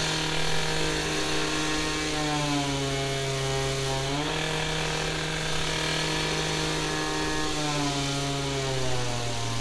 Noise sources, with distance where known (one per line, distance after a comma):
unidentified impact machinery